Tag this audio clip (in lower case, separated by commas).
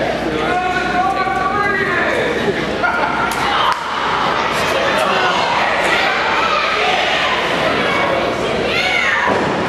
speech, inside a large room or hall